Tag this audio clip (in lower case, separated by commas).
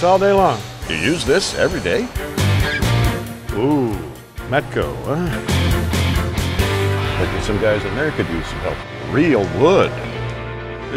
music, speech